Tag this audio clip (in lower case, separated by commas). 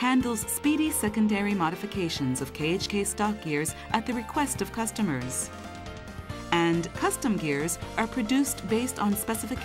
music, speech